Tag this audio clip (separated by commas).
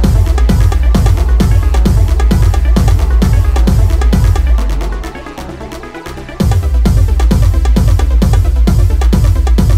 Techno, Music